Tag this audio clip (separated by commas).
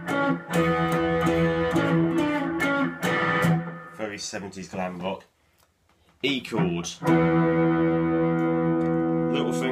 Electric guitar, Guitar, Speech, Music, Musical instrument, Plucked string instrument